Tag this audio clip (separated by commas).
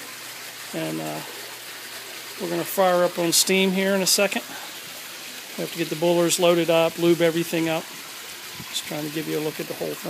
Speech